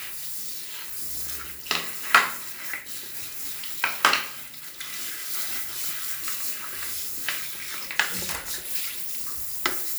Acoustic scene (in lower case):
restroom